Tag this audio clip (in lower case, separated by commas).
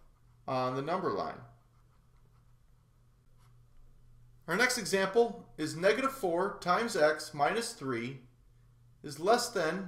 speech